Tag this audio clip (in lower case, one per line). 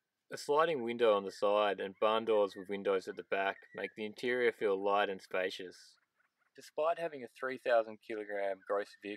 speech